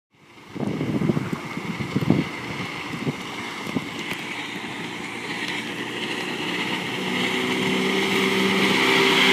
A motorboat is going at high speed